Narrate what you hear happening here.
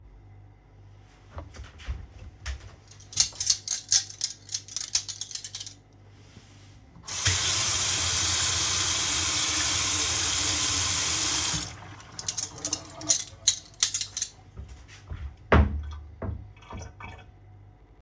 I took the cutlery, washed it. Then put them on their places and closed the wardobe